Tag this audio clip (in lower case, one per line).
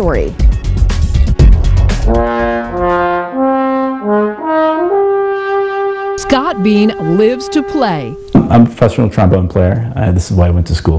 music
speech